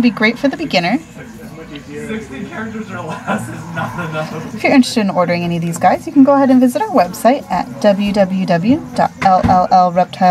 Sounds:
Speech

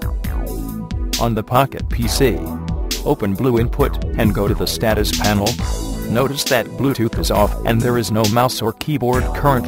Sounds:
Speech, Music

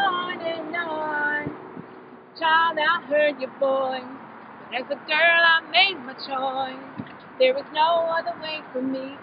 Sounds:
Female singing

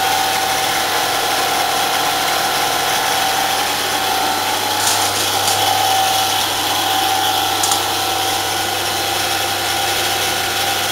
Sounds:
Tools

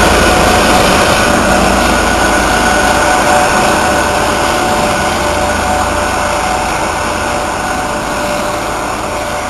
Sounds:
Engine, Vehicle

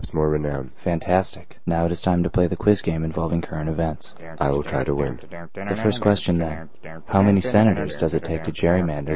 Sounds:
Speech

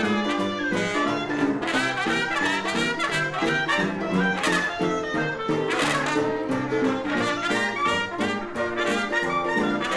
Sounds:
Music

